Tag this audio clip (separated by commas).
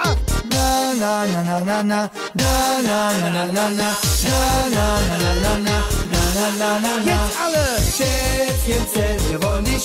Music